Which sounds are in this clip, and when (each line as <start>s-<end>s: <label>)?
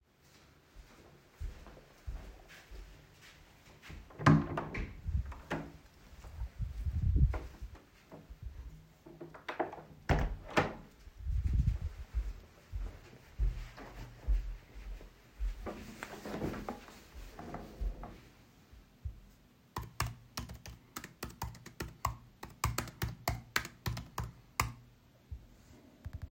0.1s-4.2s: footsteps
4.2s-11.9s: door
11.1s-18.5s: footsteps
19.6s-25.5s: keyboard typing